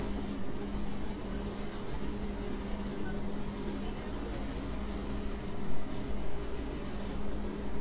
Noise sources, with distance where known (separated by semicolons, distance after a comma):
person or small group talking, far